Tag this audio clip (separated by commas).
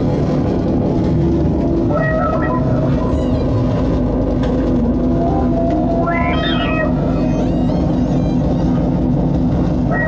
Sampler, Music